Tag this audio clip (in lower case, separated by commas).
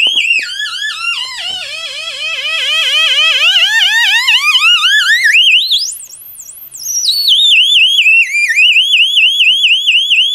inside a small room, siren